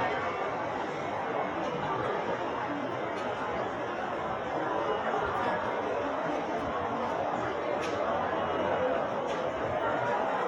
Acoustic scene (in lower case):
crowded indoor space